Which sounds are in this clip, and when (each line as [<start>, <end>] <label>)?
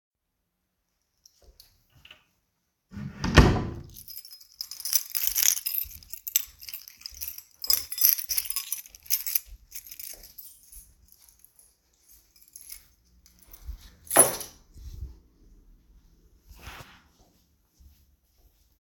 [0.91, 1.90] footsteps
[2.86, 4.12] door
[4.16, 14.73] keys
[5.66, 17.03] footsteps